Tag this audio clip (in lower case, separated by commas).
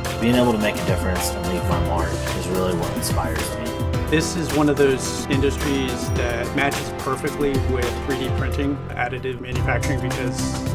speech, music